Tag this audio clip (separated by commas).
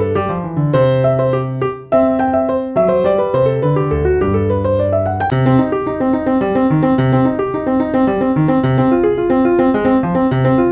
playing piano